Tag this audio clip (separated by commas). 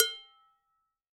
dishes, pots and pans, home sounds